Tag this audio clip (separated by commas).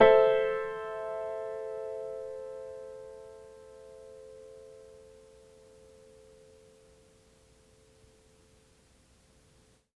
Music, Keyboard (musical), Piano, Musical instrument